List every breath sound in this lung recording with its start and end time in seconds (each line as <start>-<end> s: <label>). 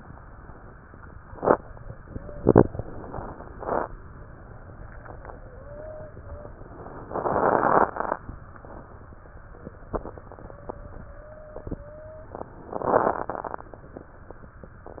2.07-2.52 s: wheeze
2.66-3.57 s: inhalation
2.66-3.57 s: crackles
5.37-6.17 s: wheeze
6.22-6.58 s: wheeze
7.06-7.97 s: inhalation
7.06-7.97 s: crackles
10.55-11.03 s: wheeze
11.10-11.65 s: wheeze
11.84-12.39 s: wheeze
12.75-13.66 s: inhalation
12.75-13.66 s: crackles